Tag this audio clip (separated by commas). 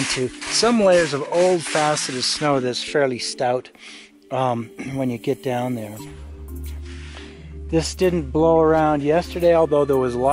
Speech, Music